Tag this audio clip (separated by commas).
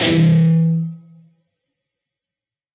Music, Plucked string instrument, Guitar, Musical instrument